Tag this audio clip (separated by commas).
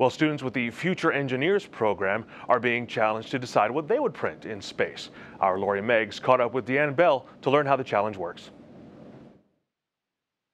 Speech